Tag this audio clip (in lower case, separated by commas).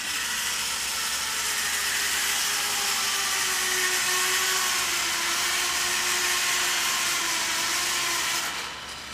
inside a large room or hall